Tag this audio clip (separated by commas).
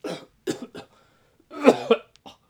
Respiratory sounds, Cough